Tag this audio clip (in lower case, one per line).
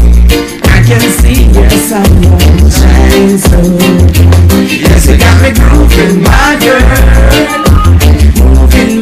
sound effect
music